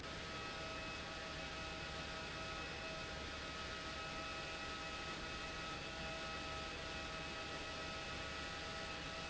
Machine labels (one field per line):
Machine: pump